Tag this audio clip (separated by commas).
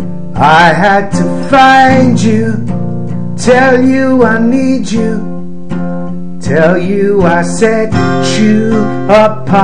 Acoustic guitar, Guitar, Plucked string instrument, Strum, Musical instrument, Singing